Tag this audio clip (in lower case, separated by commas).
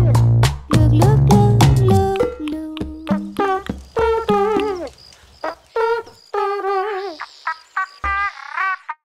music